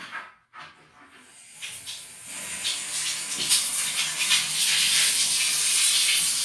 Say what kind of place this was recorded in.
restroom